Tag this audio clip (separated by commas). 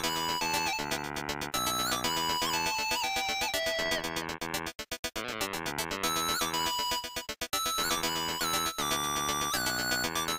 Video game music, Music